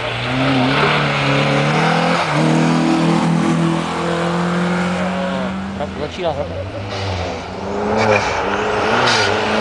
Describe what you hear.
An engine is revving and moving away. A man speaks and the revving gets closer again